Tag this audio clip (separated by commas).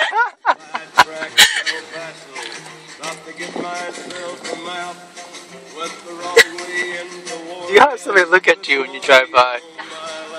Music, Speech